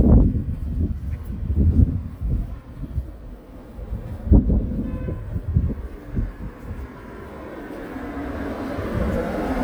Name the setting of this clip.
residential area